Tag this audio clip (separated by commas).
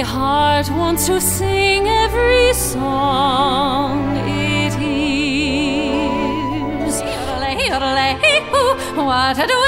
Music, Tender music